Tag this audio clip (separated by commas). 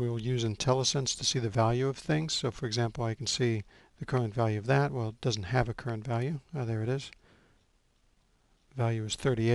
Speech